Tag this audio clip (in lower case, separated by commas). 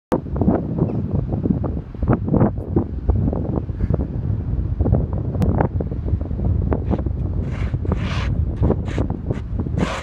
wind